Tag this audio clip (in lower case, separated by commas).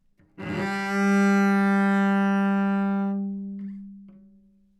bowed string instrument, music, musical instrument